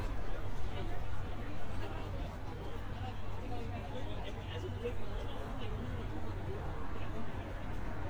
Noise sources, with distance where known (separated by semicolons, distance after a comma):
person or small group talking, near